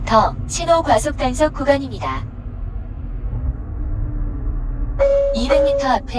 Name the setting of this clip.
car